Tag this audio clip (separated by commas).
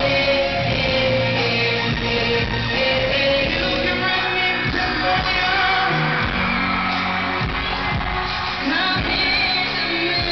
Music